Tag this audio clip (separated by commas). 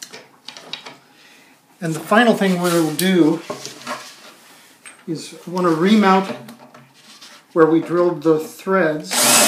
Speech, Wood, Tools